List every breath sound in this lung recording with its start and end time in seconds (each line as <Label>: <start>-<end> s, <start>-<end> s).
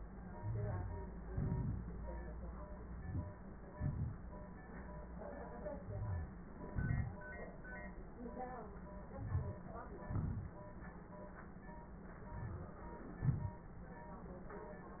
Inhalation: 0.35-1.22 s, 2.88-3.41 s, 5.80-6.48 s, 9.12-9.64 s, 12.26-12.78 s
Exhalation: 1.23-1.98 s, 3.70-4.19 s, 6.51-7.24 s, 10.01-10.61 s, 13.15-13.61 s
Crackles: 1.22-1.96 s, 3.70-4.19 s, 6.51-7.24 s, 9.12-9.64 s, 10.01-10.61 s